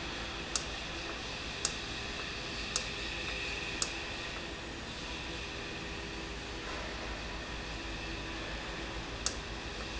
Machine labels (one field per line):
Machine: valve